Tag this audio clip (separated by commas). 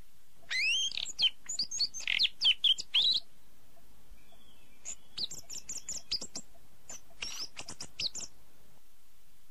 tweet, Bird, bird call